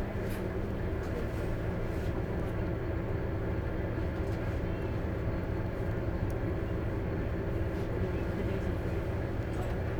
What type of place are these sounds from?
bus